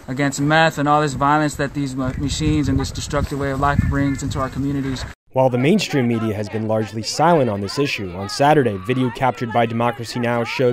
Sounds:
Speech

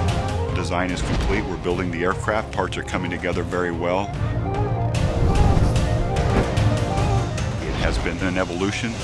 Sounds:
Music, Speech

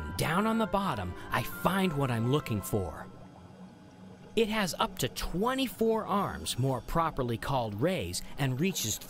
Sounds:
Speech, Music

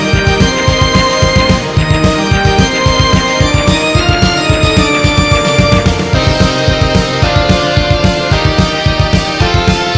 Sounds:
Video game music, Music

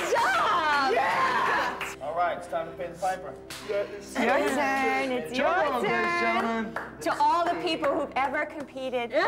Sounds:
Female speech

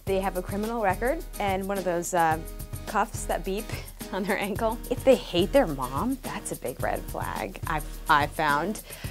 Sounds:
Speech, Music

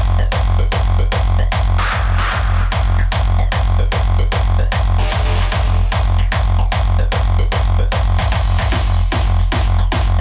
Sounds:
Music

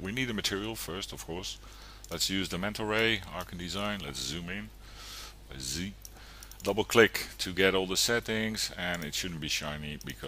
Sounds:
Speech

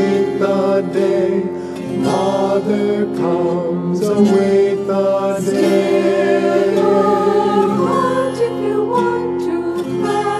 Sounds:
Vocal music, Music

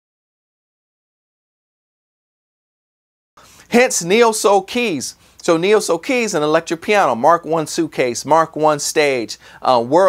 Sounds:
Speech

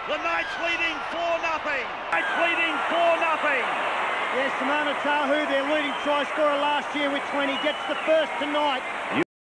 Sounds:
Speech

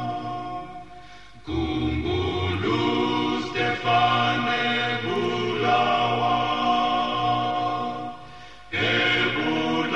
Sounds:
Chant, Music

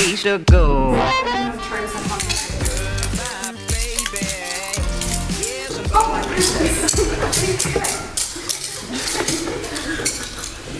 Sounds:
Speech, Music

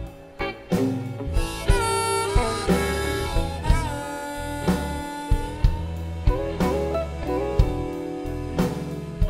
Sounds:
Music, Country

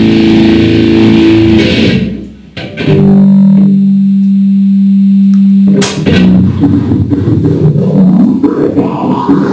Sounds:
Music

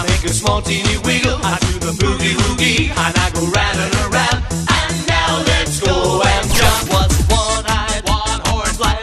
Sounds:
Music

